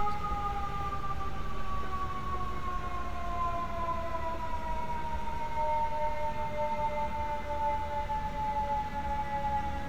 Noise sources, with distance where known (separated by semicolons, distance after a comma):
siren